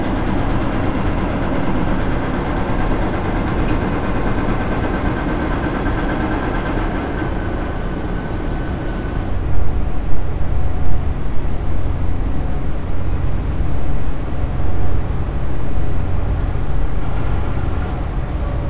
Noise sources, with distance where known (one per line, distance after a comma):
large-sounding engine